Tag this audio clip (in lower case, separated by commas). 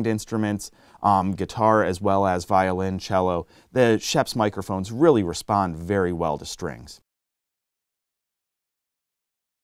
speech